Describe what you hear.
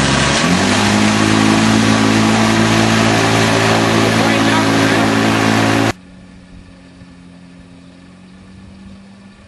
Engine running outside with background noises of people muttering something